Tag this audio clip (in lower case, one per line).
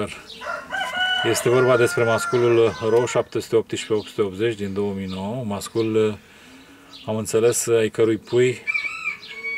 bird
tweet
bird song